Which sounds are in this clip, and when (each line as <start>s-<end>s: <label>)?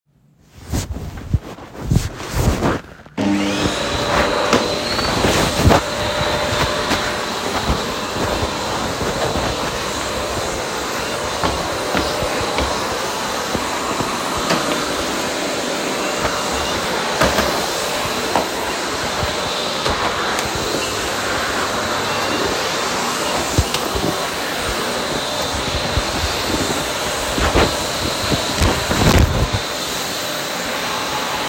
1.0s-3.1s: footsteps
3.0s-31.5s: vacuum cleaner
11.1s-13.4s: footsteps
16.0s-19.2s: footsteps